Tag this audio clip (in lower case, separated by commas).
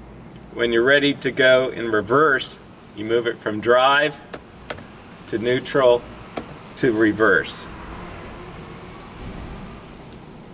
speech